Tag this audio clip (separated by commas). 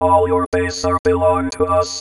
Speech, Human voice, Speech synthesizer